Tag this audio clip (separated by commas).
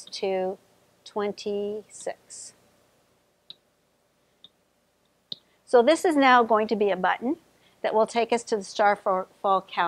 Speech